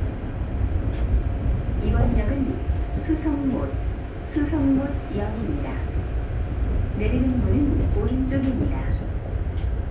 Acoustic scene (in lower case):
subway train